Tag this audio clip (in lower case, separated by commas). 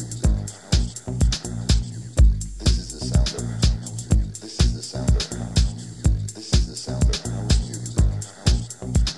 exciting music, music